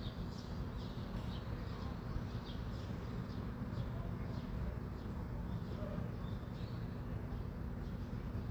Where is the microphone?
in a residential area